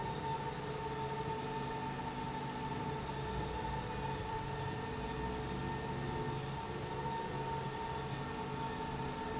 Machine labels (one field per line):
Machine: slide rail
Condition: normal